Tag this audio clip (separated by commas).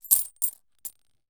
Domestic sounds, Coin (dropping)